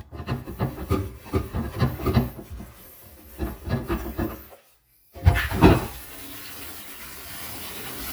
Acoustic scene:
kitchen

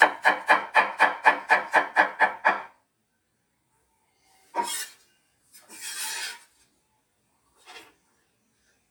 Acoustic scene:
kitchen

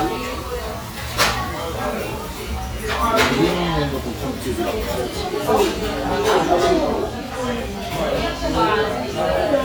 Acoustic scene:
restaurant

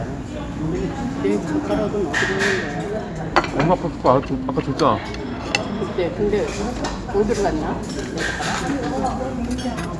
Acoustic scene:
restaurant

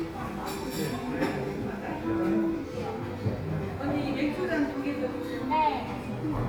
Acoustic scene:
crowded indoor space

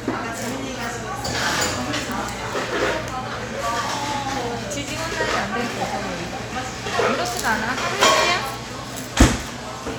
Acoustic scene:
cafe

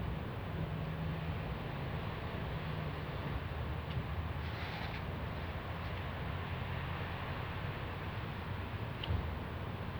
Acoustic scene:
residential area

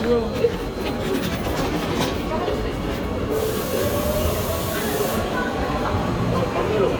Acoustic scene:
subway station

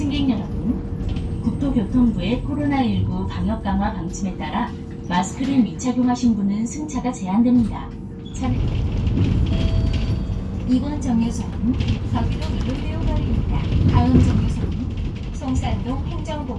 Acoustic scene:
bus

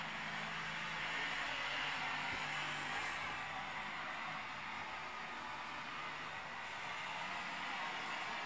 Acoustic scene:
street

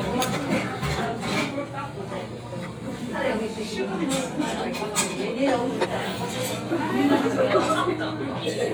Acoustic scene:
restaurant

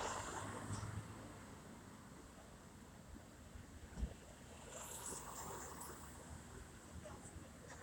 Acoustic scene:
street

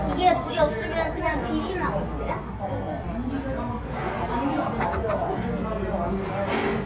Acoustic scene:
restaurant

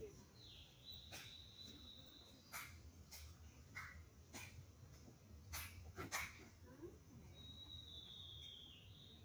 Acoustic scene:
park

